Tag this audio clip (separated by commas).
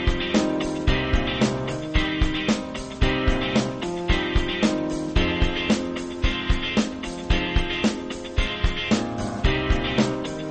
Music